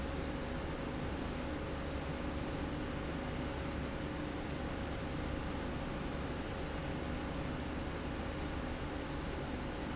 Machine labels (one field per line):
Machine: slide rail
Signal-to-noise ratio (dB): -6 dB